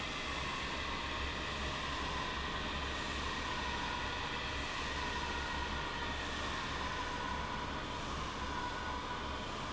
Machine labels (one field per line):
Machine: fan